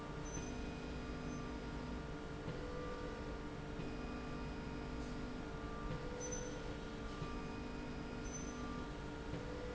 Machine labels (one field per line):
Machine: slide rail